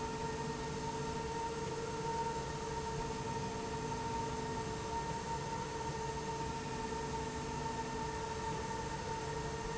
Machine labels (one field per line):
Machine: slide rail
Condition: normal